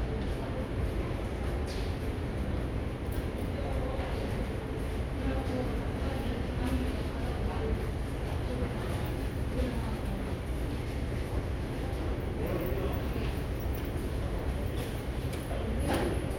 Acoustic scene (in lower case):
subway station